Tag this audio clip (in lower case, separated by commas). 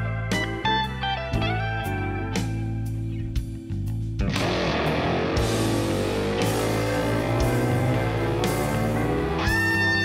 musical instrument, guitar, plucked string instrument, inside a large room or hall, music